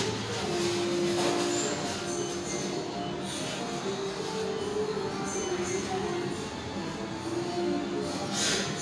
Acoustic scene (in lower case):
restaurant